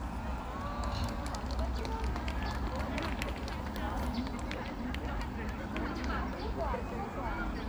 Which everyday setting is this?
park